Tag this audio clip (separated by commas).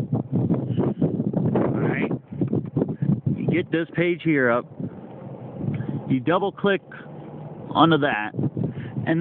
Speech